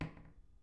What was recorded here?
wooden cupboard opening